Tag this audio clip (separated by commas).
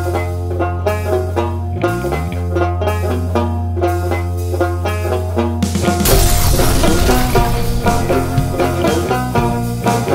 playing banjo